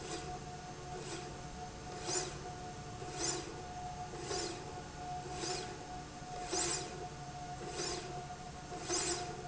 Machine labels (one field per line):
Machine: slide rail